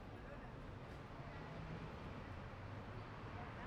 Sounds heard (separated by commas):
truck engine accelerating, truck wheels rolling, people talking, truck